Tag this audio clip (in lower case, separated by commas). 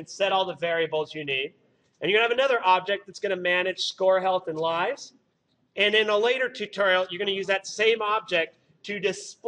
speech